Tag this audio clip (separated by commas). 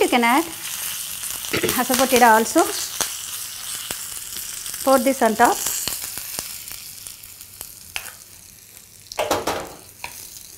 Speech, inside a small room